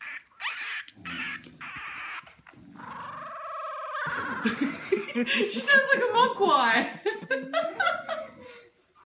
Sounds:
speech

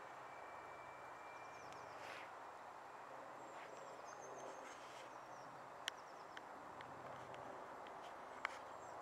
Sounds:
train
vehicle

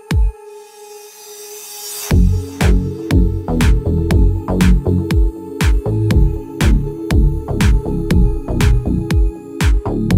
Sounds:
music

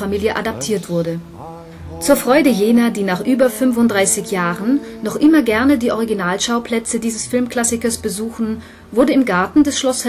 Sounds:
speech
music

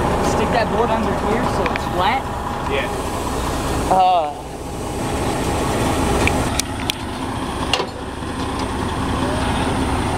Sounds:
truck
speech
vehicle
outside, urban or man-made

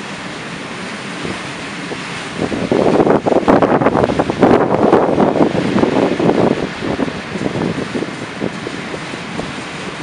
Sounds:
vehicle

